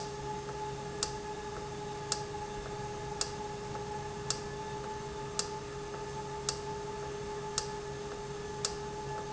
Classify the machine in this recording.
valve